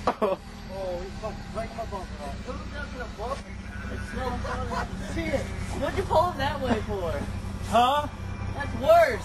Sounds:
vehicle, speech, car

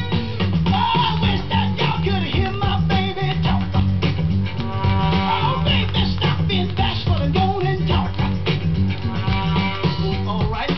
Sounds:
music

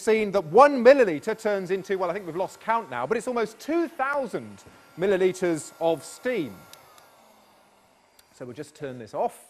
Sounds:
speech

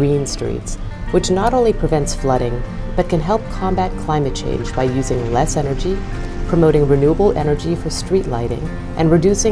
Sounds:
speech, music

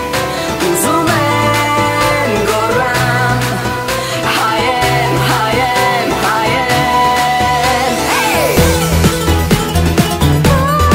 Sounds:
pop music, music

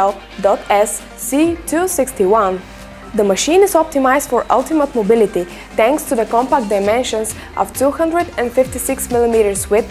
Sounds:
music, speech

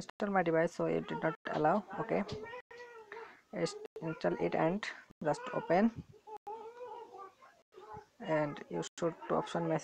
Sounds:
speech

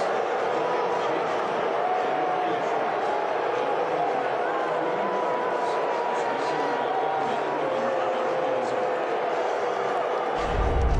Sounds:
people booing

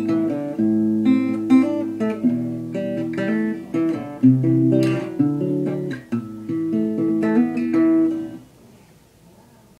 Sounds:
guitar, plucked string instrument, musical instrument, music

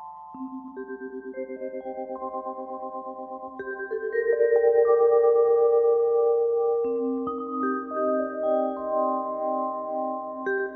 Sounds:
music, musical instrument, vibraphone, playing vibraphone, echo

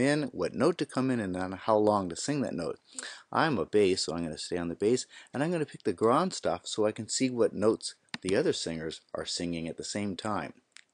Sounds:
speech

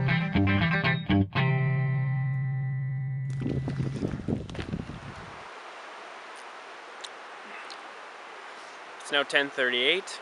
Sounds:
speech, music

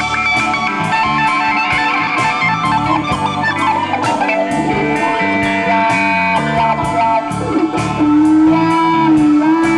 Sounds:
plucked string instrument, bass guitar, music, musical instrument, guitar, acoustic guitar, strum

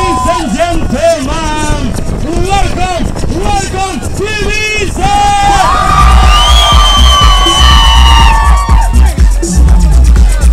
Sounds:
speech, music

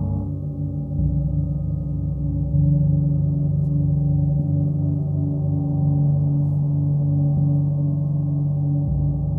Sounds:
playing gong

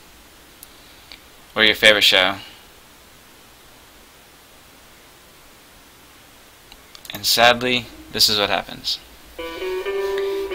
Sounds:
speech, music

